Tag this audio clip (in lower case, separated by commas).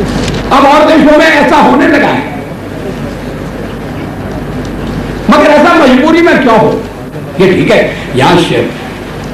male speech, speech, narration